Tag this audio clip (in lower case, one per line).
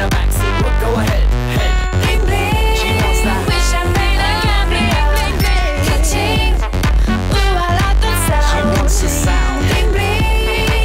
music